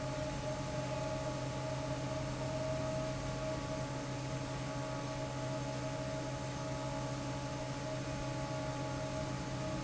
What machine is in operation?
fan